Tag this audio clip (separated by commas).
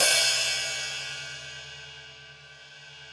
Hi-hat, Music, Percussion, Musical instrument, Cymbal